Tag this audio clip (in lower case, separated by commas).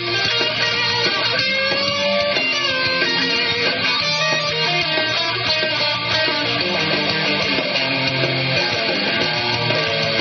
music, playing electric guitar, guitar, electric guitar, musical instrument, plucked string instrument